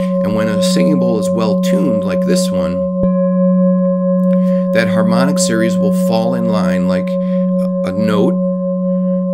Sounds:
singing bowl

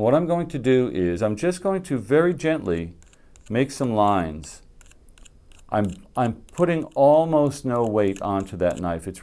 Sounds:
speech

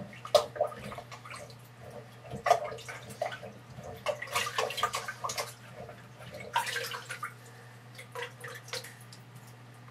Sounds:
inside a small room

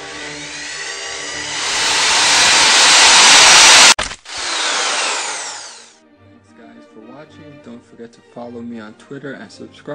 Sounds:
music
speech

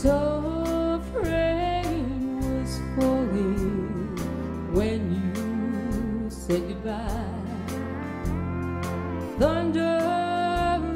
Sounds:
music
female singing

